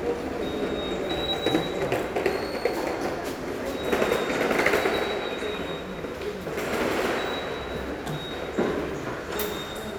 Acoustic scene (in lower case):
subway station